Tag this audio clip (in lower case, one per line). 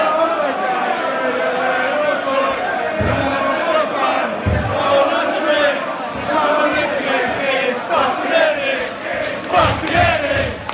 choir
music